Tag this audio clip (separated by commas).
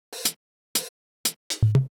Music, Hi-hat, Cymbal, Musical instrument, Percussion